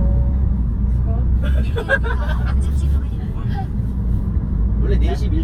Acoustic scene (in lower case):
car